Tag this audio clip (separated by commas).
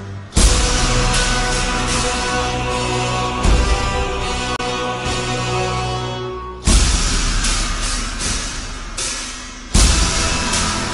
Music